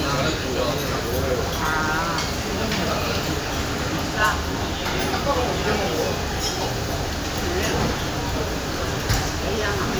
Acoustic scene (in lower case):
crowded indoor space